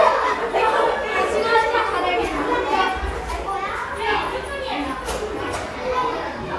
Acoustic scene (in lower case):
crowded indoor space